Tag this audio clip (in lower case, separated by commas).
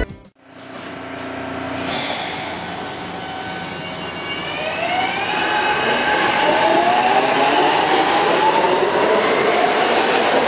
underground